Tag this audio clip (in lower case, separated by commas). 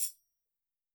percussion, music, tambourine, musical instrument